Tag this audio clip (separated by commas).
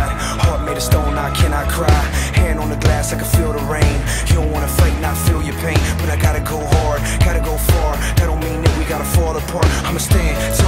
Music